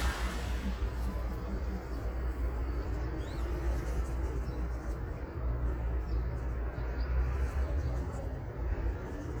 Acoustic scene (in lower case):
street